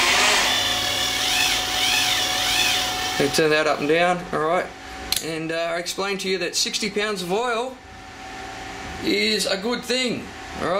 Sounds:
speech

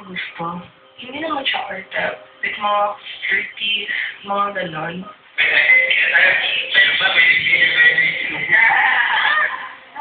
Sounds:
speech

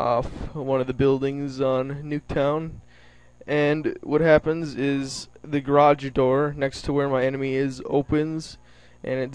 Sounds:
speech

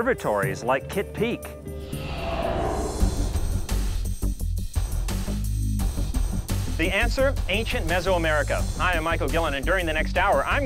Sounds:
speech, music

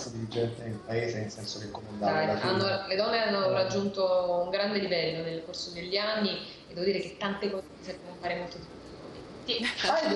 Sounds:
speech

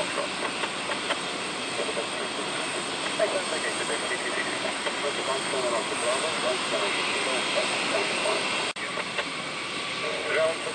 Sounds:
airplane, speech, vehicle

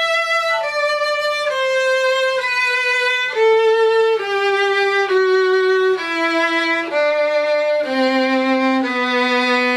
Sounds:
music, fiddle, musical instrument

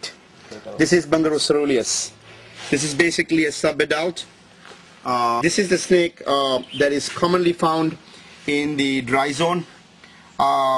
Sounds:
outside, urban or man-made, speech, animal

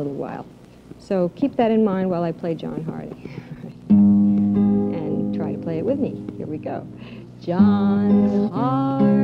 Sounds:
speech, music, guitar

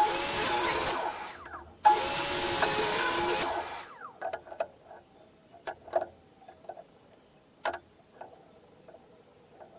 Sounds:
inside a small room

